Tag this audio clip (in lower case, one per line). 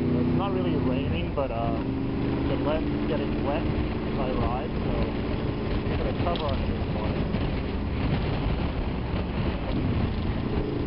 vehicle
speech
motorcycle